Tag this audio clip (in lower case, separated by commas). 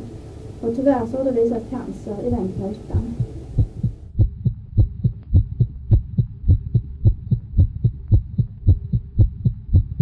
speech